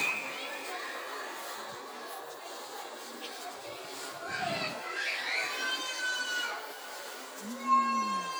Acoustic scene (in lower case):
residential area